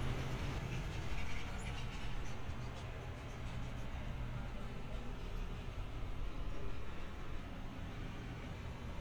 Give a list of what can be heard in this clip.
non-machinery impact